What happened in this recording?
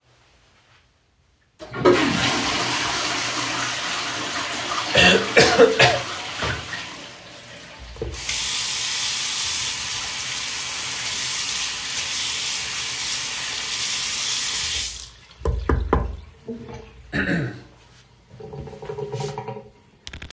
Im flushing the toiled cough and wash my hands